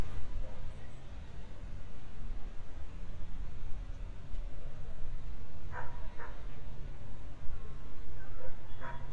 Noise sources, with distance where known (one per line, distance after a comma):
car horn, far
dog barking or whining, far